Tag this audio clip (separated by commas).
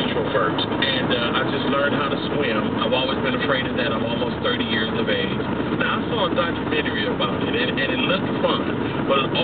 Speech